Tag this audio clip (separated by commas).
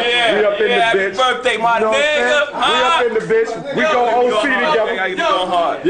Speech